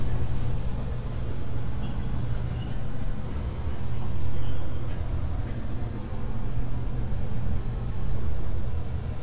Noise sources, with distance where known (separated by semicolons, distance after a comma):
non-machinery impact